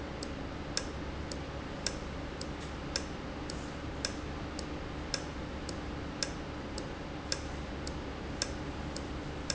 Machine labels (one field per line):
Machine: valve